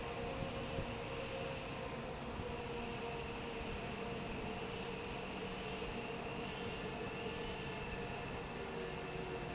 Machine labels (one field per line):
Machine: fan